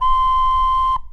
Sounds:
Wind instrument, Music, Musical instrument

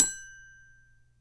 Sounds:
Music, Marimba, Musical instrument, Mallet percussion, Percussion

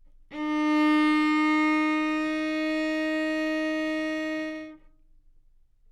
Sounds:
Musical instrument, Music, Bowed string instrument

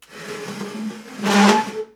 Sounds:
Squeak

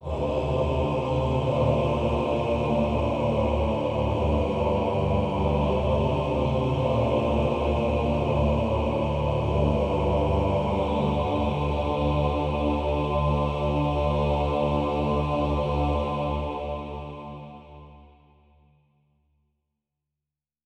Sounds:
Human voice, Music, Singing, Musical instrument

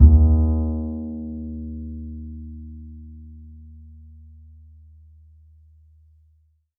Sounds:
Musical instrument, Music, Bowed string instrument

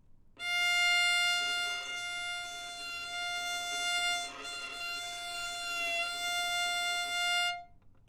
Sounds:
Musical instrument, Music, Bowed string instrument

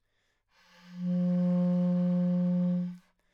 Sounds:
Musical instrument, woodwind instrument, Music

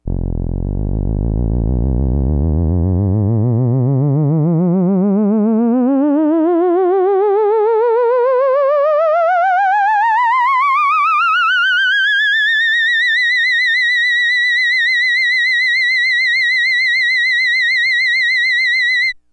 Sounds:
Music, Musical instrument

